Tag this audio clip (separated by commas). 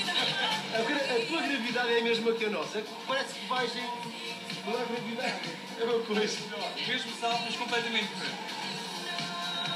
Speech, Music